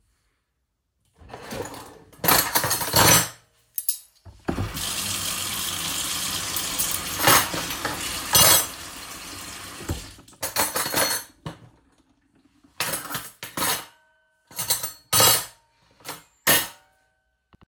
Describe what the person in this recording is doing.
I open a drawer containing cutlery in the kitchen. I place several utensils back into the drawer and briefly rinse some of them under running water. After finishing, I return the utensils to the drawer and close it. Overlapping sounds